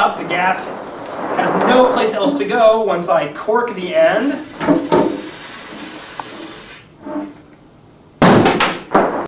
Whooshing occurs, an adult male is speaks, and then knocking and a popping sound occur